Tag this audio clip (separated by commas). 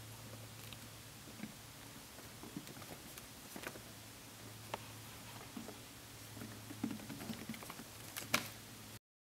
chinchilla barking